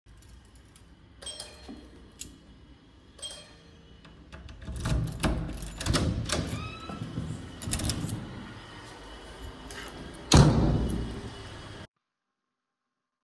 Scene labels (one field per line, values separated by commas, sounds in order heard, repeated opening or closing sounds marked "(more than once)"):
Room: hallway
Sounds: keys, bell ringing, door (more than once)